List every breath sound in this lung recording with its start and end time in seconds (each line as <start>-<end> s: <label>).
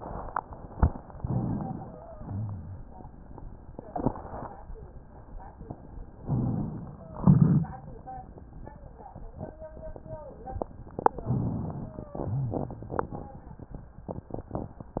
1.08-1.98 s: inhalation
1.75-2.26 s: wheeze
2.09-2.98 s: exhalation
2.09-2.98 s: rhonchi
6.17-7.06 s: inhalation
6.91-7.38 s: wheeze
7.12-7.80 s: exhalation
11.25-11.86 s: rhonchi
11.25-12.09 s: inhalation
11.78-12.30 s: wheeze
12.18-13.02 s: exhalation
12.22-12.73 s: rhonchi